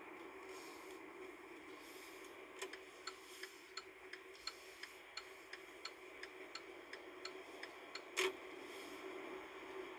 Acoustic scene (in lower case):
car